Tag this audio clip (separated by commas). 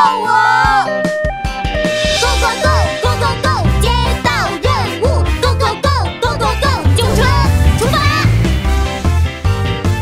ice cream van